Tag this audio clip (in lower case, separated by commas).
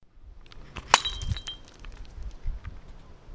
shatter, glass, crushing